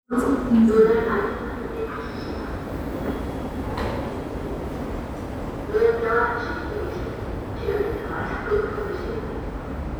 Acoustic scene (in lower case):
subway station